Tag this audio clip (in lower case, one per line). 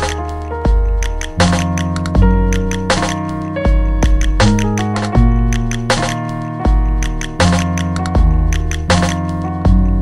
piano
jazz
music